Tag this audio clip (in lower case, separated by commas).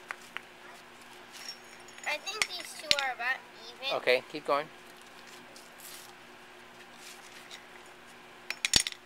speech, kid speaking